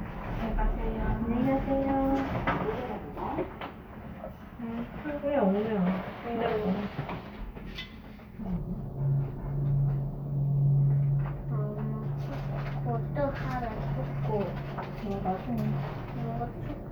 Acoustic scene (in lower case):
elevator